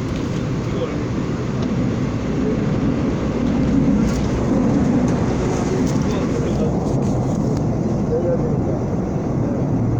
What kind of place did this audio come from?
subway train